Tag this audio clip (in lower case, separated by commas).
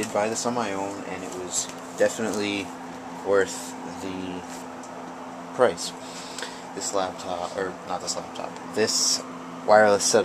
speech